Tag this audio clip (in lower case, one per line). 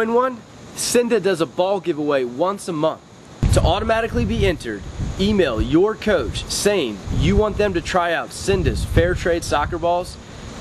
speech